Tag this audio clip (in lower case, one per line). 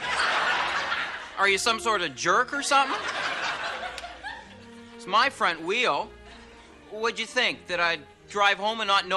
music
speech